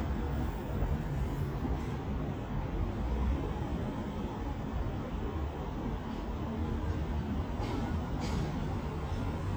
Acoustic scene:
residential area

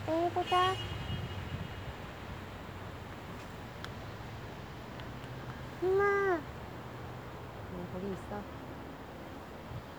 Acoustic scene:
residential area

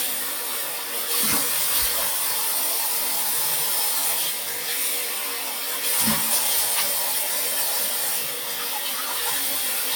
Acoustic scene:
restroom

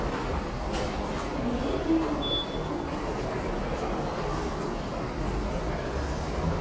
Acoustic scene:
subway station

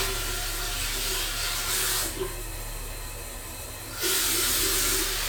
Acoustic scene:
restroom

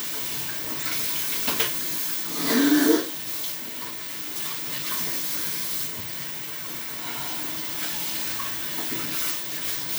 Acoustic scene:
restroom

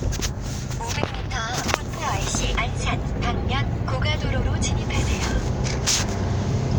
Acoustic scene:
car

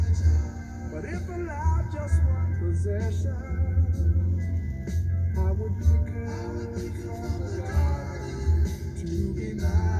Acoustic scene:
car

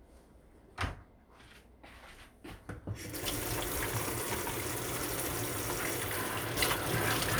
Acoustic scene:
kitchen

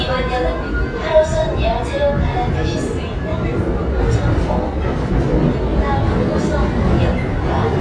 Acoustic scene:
subway train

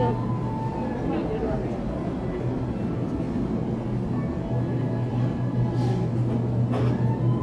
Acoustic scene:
crowded indoor space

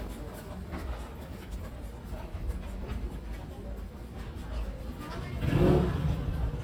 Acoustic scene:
residential area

